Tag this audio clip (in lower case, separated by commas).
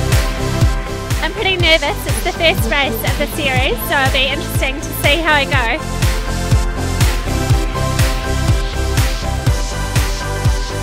music, speech